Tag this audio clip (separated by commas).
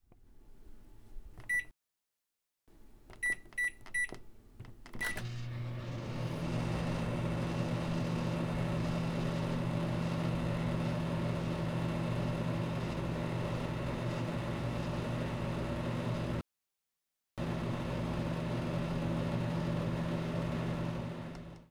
home sounds, Microwave oven